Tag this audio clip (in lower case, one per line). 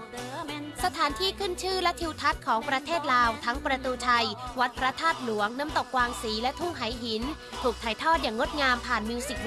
music
speech